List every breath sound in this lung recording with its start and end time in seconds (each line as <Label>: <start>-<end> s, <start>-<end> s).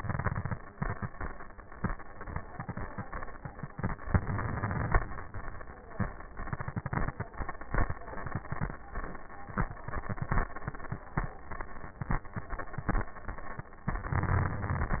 Inhalation: 0.00-0.53 s, 4.12-4.99 s, 14.01-15.00 s
Crackles: 0.00-0.54 s, 4.10-4.99 s, 14.01-15.00 s